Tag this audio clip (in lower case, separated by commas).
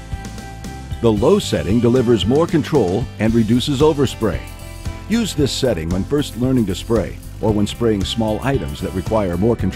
spray, music, speech